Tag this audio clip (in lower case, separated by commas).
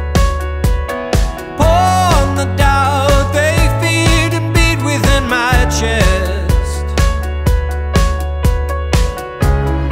music